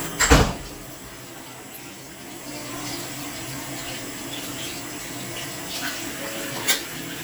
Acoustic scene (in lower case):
restroom